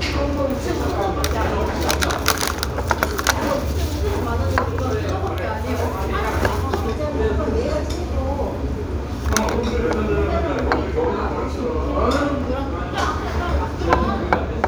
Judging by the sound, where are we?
in a restaurant